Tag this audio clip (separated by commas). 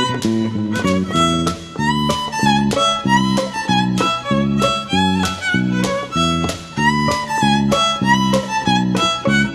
Music, Musical instrument, fiddle